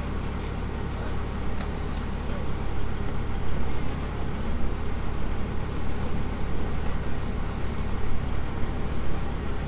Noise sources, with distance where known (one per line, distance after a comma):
medium-sounding engine